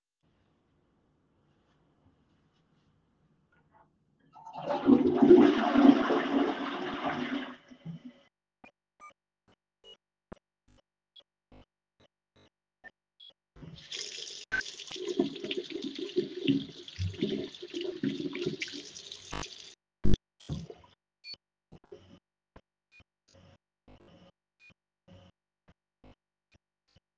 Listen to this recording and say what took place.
I flush toilet. I turn on water. I wash my hands